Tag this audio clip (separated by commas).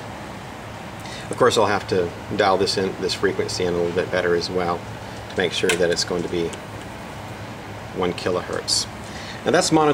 Speech